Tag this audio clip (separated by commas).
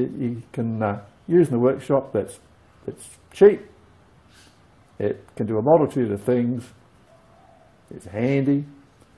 Speech